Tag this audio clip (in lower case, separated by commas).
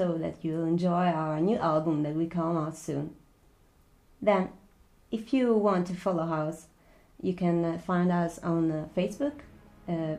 speech